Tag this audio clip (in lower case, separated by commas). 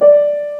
piano, music, keyboard (musical), musical instrument